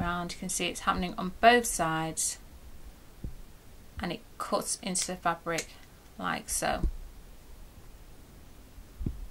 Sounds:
Speech

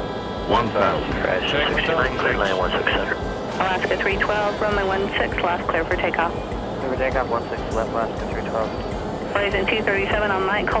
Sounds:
airplane

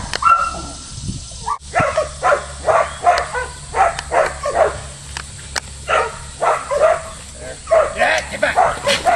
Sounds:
Animal, Speech, Domestic animals, Dog

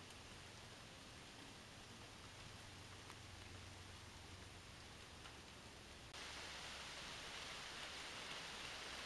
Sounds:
chipmunk chirping

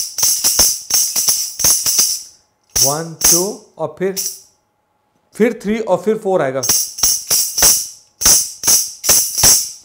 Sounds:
playing tambourine

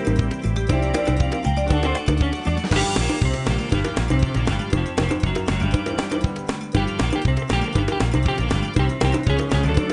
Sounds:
Music

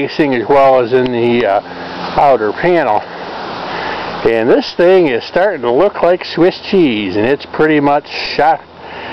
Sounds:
Speech

